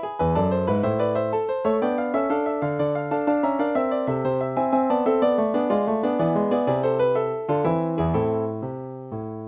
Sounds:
musical instrument
music

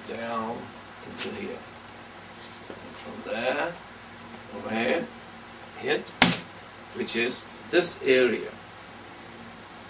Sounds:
speech

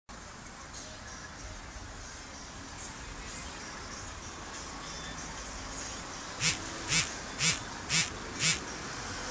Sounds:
vehicle
motor vehicle (road)
music

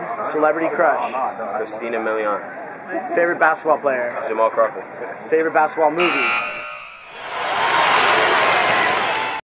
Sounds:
speech

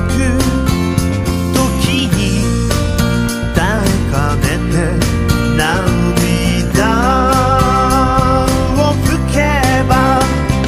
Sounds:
music

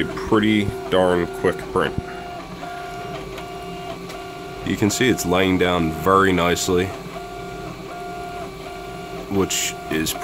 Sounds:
printer
speech

